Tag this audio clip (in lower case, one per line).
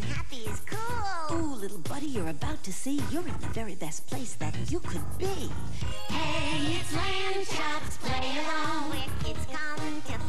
music
speech